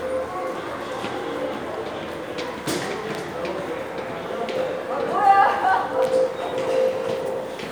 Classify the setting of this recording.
subway station